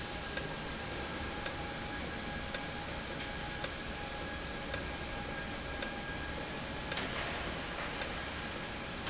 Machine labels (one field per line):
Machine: valve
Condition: normal